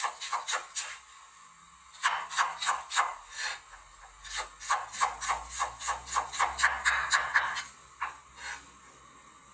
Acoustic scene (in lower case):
kitchen